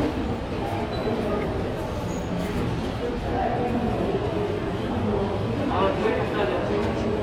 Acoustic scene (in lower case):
crowded indoor space